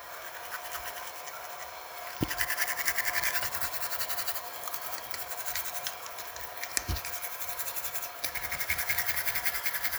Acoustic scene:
restroom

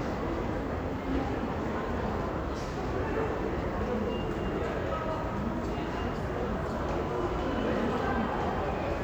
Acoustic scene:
crowded indoor space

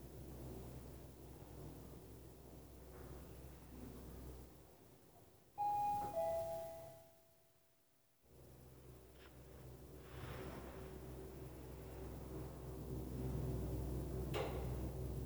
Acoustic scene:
elevator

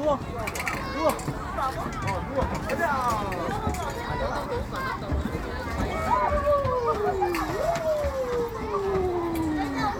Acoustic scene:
park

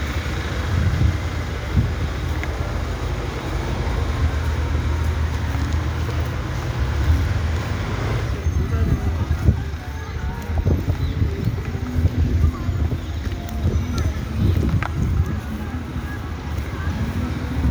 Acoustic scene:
street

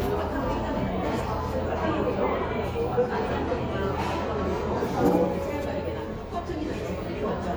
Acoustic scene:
cafe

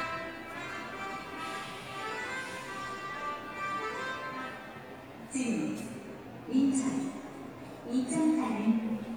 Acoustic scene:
subway station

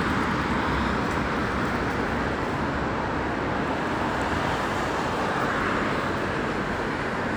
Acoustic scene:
street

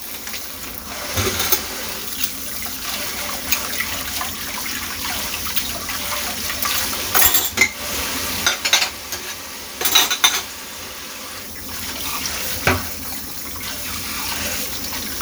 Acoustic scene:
kitchen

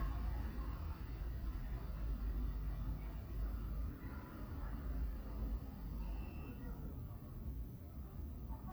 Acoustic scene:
residential area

